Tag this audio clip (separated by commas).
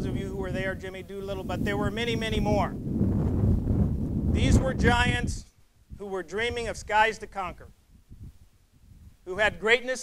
man speaking, Speech